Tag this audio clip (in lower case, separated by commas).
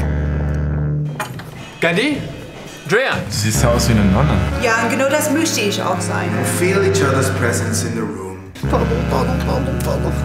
music, speech